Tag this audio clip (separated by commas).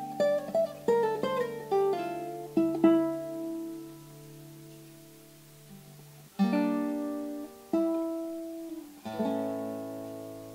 Guitar, Musical instrument, Acoustic guitar, Plucked string instrument, Music